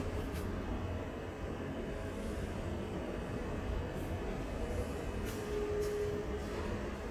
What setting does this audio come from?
subway station